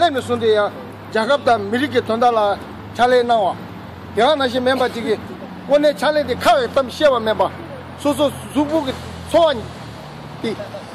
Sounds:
Male speech, Speech, monologue

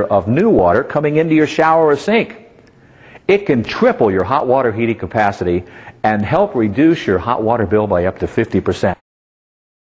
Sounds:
Speech

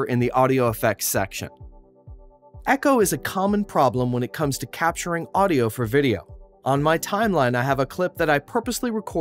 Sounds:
Speech, Speech synthesizer

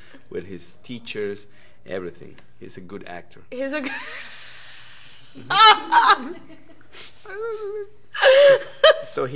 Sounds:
Snicker, Chuckle, Speech

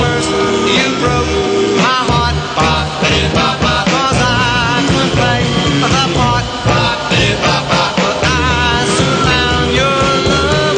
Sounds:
Music

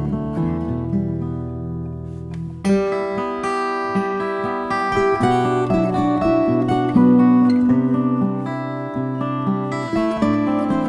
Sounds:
Plucked string instrument, Music, Musical instrument, Strum, Guitar

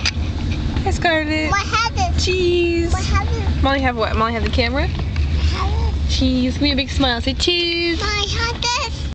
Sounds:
Speech, Single-lens reflex camera

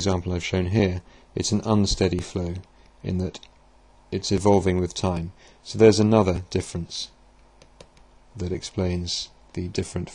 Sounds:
Speech

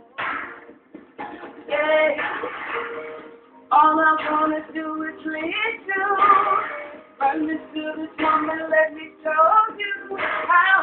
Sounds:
Female singing, Music

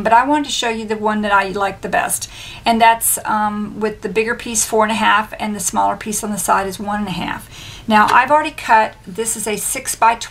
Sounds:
Speech

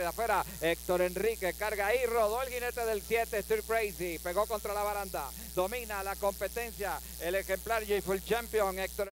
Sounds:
Speech

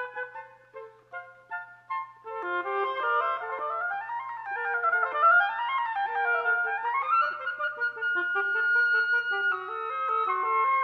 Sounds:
playing oboe

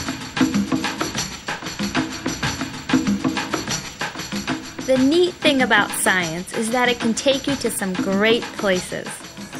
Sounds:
Music, Speech

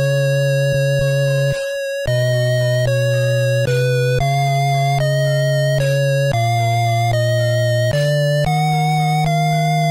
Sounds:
Music, Video game music

